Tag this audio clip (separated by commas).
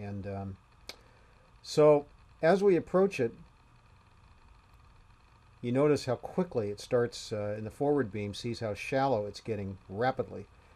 Speech